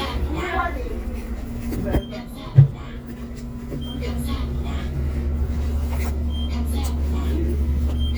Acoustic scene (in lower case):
bus